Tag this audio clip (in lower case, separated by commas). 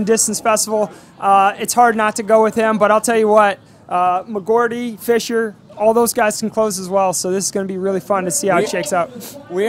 speech, outside, rural or natural